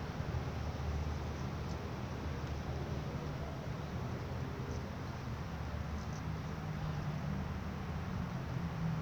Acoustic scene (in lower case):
residential area